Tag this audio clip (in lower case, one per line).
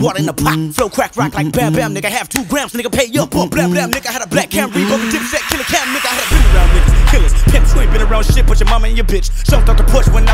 music